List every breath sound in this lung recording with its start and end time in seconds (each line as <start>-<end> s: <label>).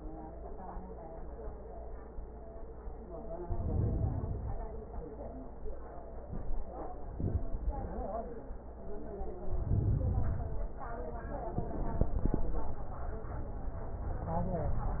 3.43-4.64 s: inhalation
9.46-10.67 s: inhalation